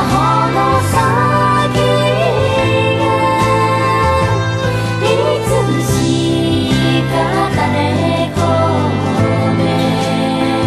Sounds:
Music, Jingle (music)

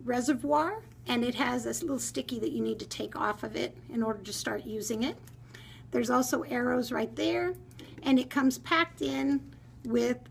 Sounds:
Speech

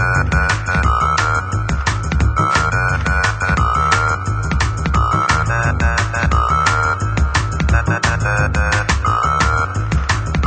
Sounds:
Music

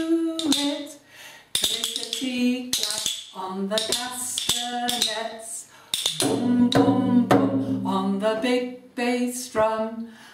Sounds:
Drum, Music, Musical instrument, Bass drum, Percussion

